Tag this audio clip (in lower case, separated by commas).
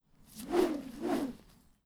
whoosh